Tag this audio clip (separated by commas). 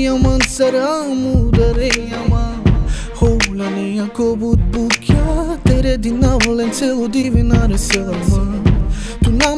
Music